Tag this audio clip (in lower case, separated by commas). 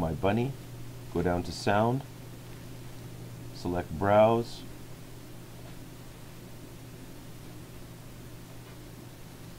speech